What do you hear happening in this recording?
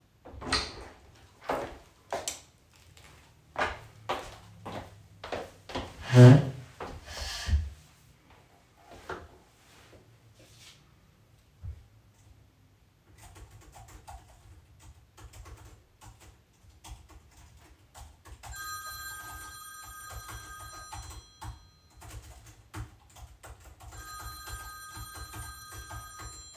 I entered the office, switched on the light and moved the chair to sit down at my desk. I started to type a text as my telephone started to ring.